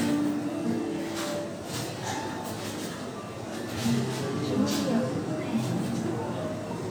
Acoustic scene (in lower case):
cafe